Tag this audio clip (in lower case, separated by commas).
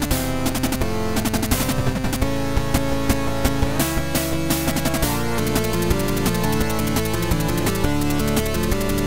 music